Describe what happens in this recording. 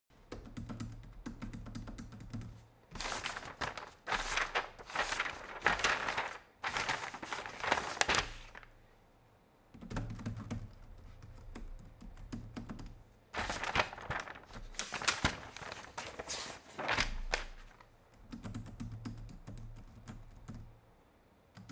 I was typing and then checking papers twice in a row